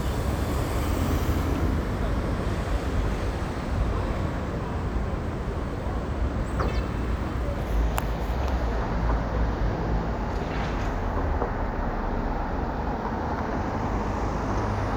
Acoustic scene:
street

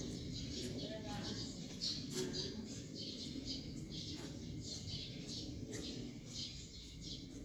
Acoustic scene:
park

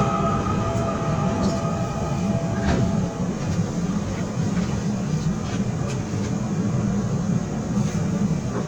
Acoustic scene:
subway train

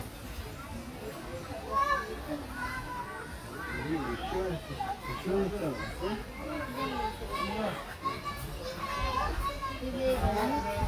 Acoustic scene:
park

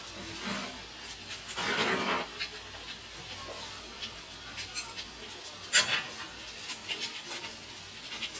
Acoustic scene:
kitchen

